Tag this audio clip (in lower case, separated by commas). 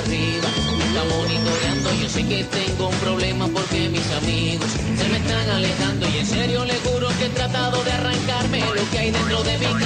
television, music